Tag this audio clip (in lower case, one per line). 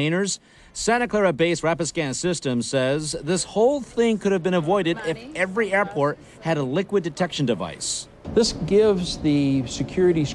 speech